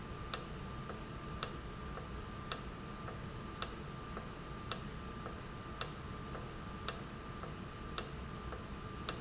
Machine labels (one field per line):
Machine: valve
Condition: normal